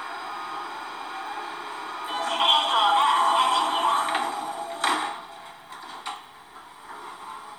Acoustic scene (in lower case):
subway train